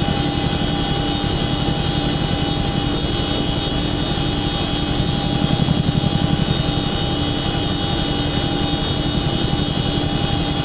A helicopter hoovering in mid air